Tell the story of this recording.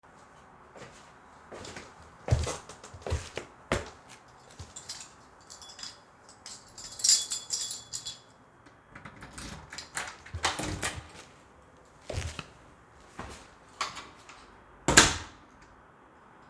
I walked toward the apartment door while holding my keys. I opened the door with the keychain and stepped inside. The footsteps and door sounds were clearly audible.